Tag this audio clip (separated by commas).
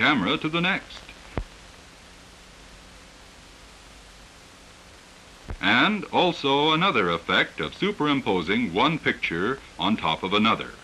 Speech